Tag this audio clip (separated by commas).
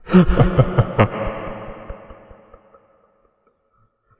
Human voice, Laughter